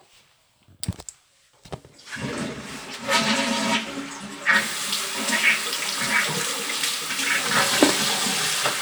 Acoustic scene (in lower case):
restroom